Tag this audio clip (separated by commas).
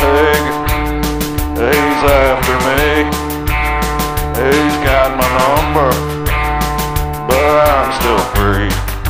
Music